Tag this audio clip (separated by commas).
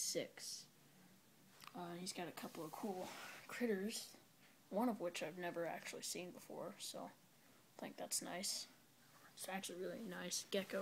Speech